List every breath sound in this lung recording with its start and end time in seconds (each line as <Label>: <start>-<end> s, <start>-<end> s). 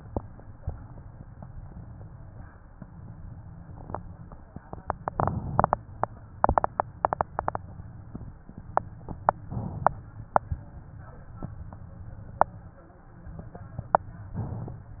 Inhalation: 5.14-6.39 s, 9.41-10.39 s, 14.34-15.00 s
Exhalation: 6.39-7.60 s, 10.39-11.45 s